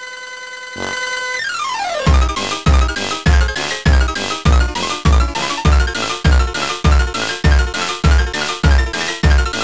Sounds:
Rhythm and blues, Music

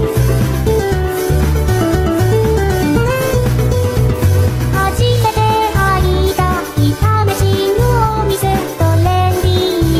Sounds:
Music

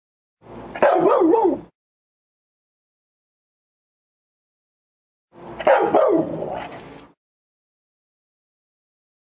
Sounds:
Yip, Bow-wow

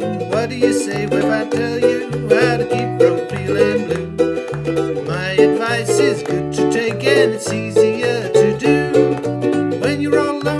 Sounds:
Ukulele, inside a small room, Music

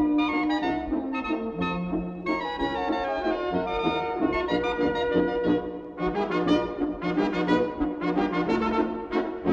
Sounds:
Music, Soul music

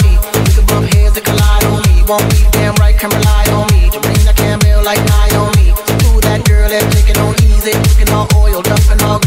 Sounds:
Music

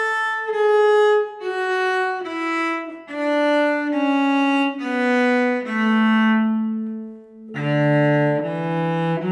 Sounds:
playing cello

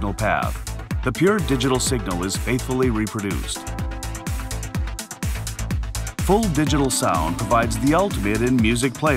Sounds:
Music, Speech

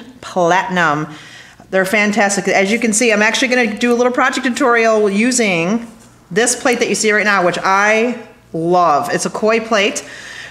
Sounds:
Speech

